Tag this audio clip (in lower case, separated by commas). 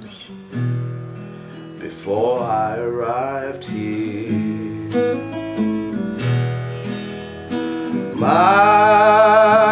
guitar, music, bass guitar, plucked string instrument, musical instrument